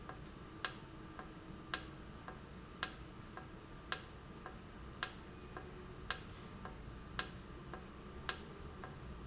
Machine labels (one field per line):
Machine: valve